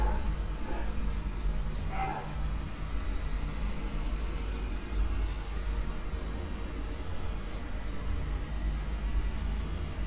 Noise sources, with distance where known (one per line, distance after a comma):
dog barking or whining, far